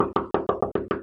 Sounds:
home sounds, knock, door

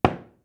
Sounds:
door, domestic sounds, knock, wood

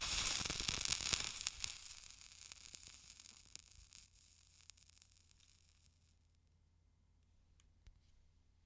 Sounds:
crackle

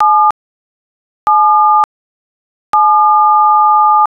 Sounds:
alarm, telephone

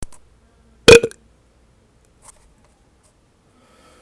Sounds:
eructation

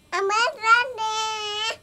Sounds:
human voice, speech, child speech

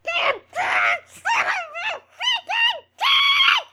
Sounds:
screaming, human voice

